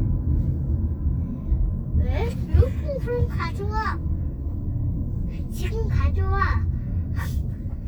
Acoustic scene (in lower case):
car